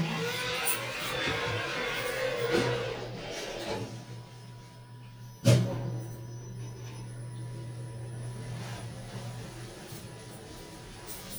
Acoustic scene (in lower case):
elevator